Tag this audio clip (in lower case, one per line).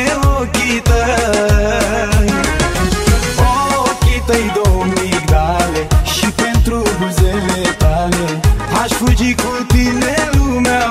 middle eastern music
music